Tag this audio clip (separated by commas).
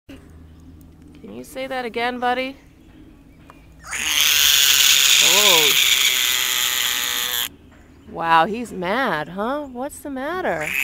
Frog